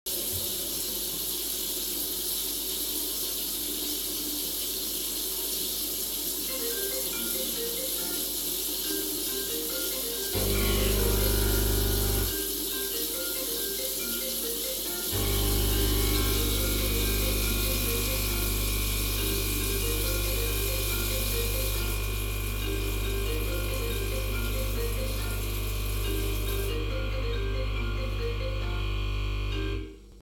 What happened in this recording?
I had water running in my kitchen sink, then I received a call which I couldn't pick up and left to ring. Then, keeping the water running in the background, I turned my coffee machine on. Then the call ended, and I only turned the water off at the same time as the coffee machine got done.